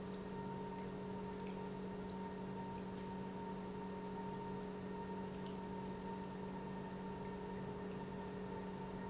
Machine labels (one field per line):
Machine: pump